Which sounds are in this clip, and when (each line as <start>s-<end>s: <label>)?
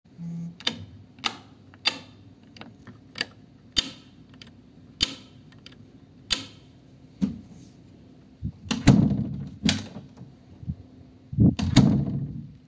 0.0s-0.6s: phone ringing
0.6s-6.7s: light switch
7.1s-7.4s: light switch
8.3s-10.1s: door
9.6s-10.0s: light switch
11.1s-12.6s: door